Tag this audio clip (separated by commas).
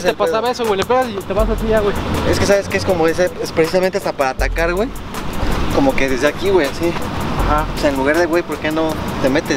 shot football